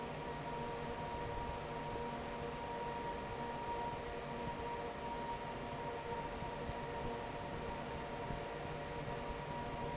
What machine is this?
fan